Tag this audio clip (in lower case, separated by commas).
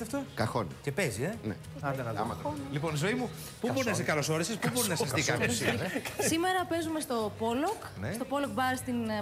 speech, music